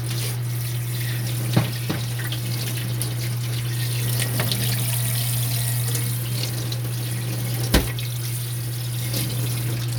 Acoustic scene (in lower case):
kitchen